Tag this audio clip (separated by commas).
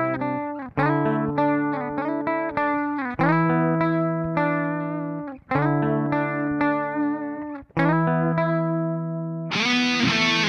Music, Guitar, Musical instrument, Plucked string instrument